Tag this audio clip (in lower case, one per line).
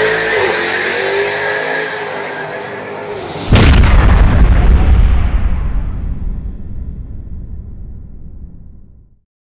car
vehicle
car passing by